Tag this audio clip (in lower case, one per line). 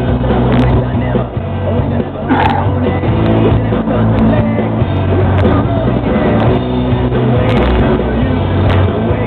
music
outside, rural or natural
vehicle
car